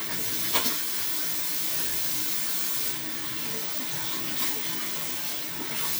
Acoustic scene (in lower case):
restroom